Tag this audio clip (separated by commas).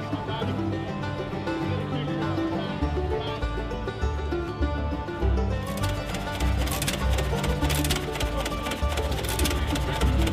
Music, Speech